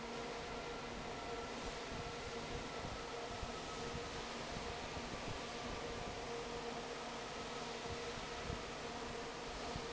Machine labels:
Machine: fan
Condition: normal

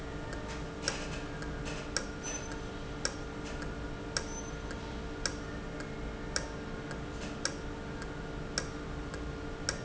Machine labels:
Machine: valve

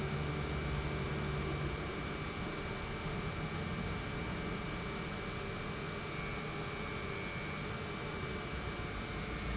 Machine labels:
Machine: pump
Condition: normal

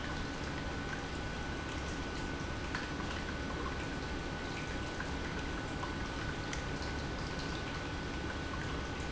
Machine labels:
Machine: pump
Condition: normal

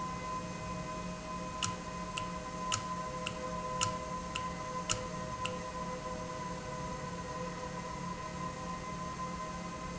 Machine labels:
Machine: valve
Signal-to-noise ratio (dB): -6 dB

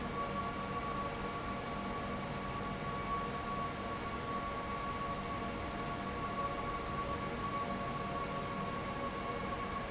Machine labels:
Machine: fan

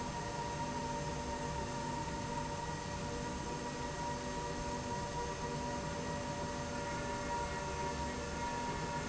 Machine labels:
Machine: slide rail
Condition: normal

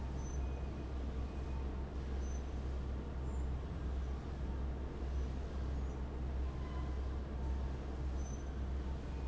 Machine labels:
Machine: fan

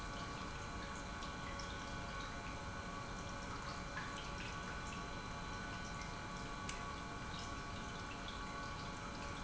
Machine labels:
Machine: pump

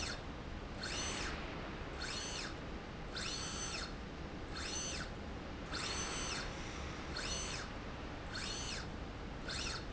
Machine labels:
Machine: slide rail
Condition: normal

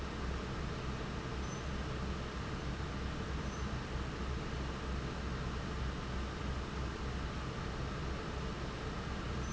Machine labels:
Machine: fan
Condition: normal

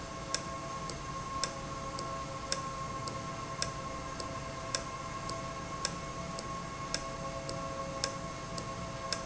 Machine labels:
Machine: valve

